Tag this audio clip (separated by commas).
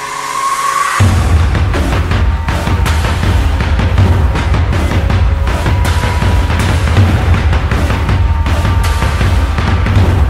Music